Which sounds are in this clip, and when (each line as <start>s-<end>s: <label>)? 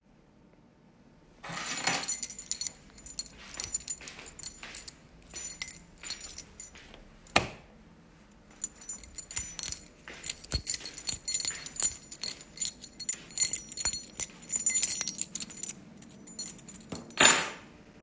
1.4s-6.8s: keys
3.6s-6.4s: footsteps
7.3s-7.6s: light switch
8.6s-17.6s: keys
8.9s-15.2s: footsteps